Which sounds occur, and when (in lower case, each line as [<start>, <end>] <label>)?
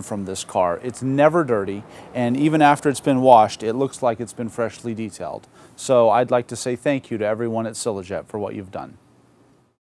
[0.00, 1.77] male speech
[0.00, 9.70] mechanisms
[1.77, 2.07] breathing
[2.07, 5.36] male speech
[5.38, 5.73] breathing
[5.71, 8.88] male speech